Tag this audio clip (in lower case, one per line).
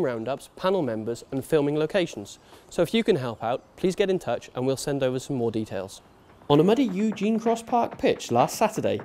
speech